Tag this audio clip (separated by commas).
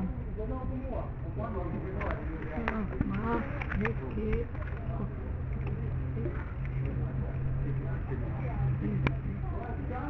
Speech